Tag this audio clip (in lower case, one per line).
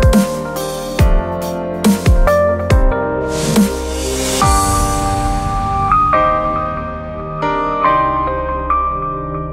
dubstep
electronic music
music